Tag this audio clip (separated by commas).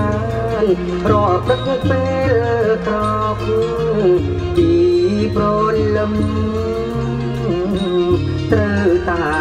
Music